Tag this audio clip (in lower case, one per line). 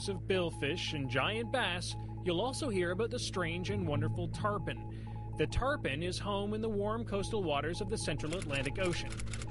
speech